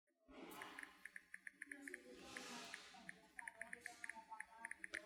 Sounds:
domestic sounds
typing

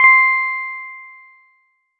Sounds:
musical instrument
keyboard (musical)
piano
music

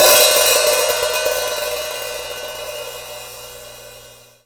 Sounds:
cymbal
hi-hat
percussion
musical instrument
music

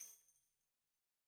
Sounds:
musical instrument
percussion
tambourine
music

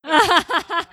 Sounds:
laughter
human voice

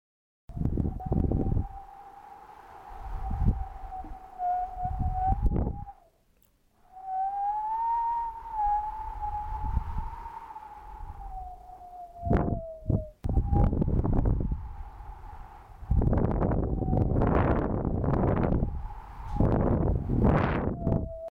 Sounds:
wind

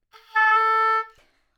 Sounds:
musical instrument
wind instrument
music

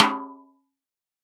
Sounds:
musical instrument
music
snare drum
percussion
drum

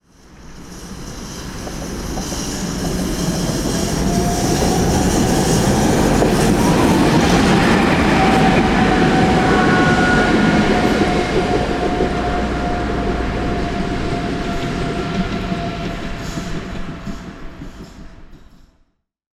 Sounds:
train
vehicle
rail transport

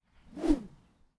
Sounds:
whoosh

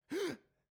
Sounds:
respiratory sounds
gasp
breathing

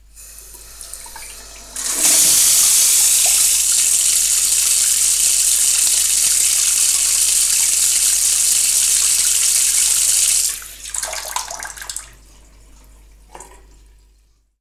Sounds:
sink (filling or washing)
faucet
domestic sounds

